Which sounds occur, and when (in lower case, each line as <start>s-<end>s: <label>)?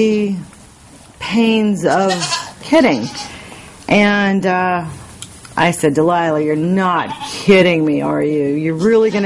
0.0s-0.5s: woman speaking
0.0s-9.2s: mechanisms
0.5s-0.6s: generic impact sounds
1.2s-2.4s: woman speaking
1.8s-2.5s: bleat
2.7s-3.2s: woman speaking
2.7s-3.4s: bleat
3.2s-3.9s: breathing
3.5s-3.6s: generic impact sounds
3.8s-3.9s: generic impact sounds
3.9s-5.0s: woman speaking
5.2s-5.3s: generic impact sounds
5.4s-5.6s: generic impact sounds
5.6s-9.2s: woman speaking
6.7s-7.2s: bleat
8.8s-9.2s: bleat